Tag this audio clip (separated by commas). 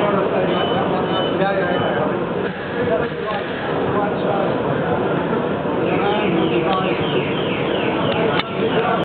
Engine, Speech